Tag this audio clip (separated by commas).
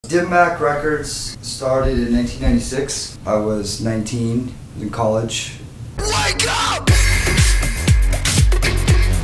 Music, House music